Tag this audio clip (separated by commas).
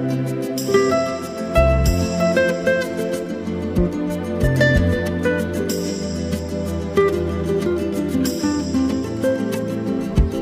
Music